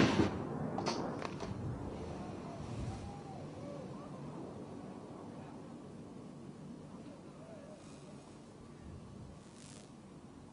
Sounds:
speech

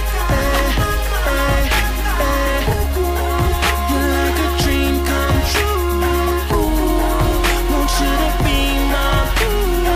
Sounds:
music

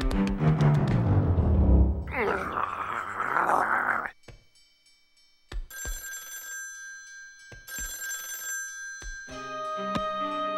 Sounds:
music, inside a small room

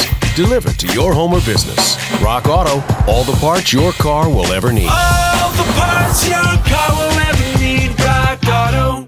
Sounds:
music, speech

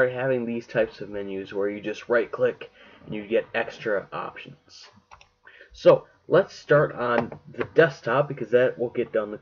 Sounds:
speech

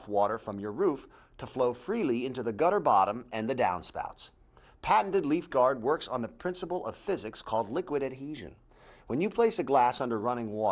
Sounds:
speech

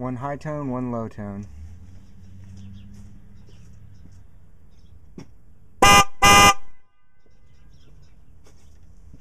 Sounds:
speech, vehicle horn

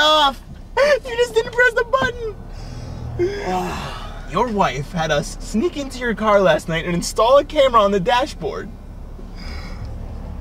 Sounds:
speech

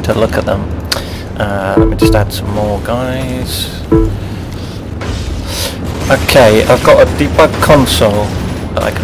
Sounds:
music, speech

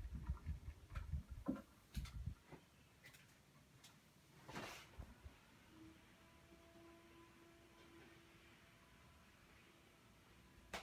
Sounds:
bathroom ventilation fan running

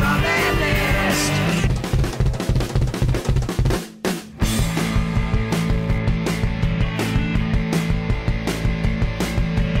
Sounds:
rimshot, drum, drum roll, snare drum, bass drum, drum kit, percussion

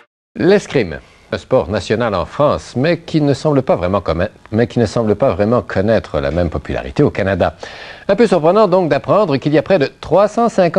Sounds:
speech

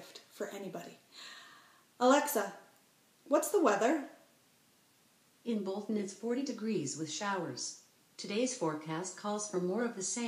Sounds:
speech

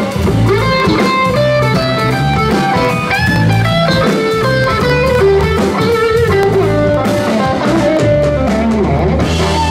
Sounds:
guitar, plucked string instrument, electric guitar, music, musical instrument

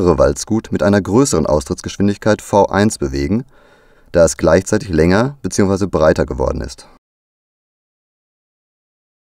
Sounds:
arc welding

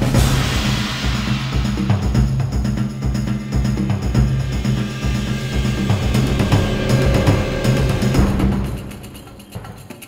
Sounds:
music

